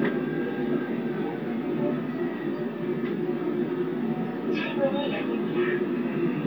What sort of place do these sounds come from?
subway train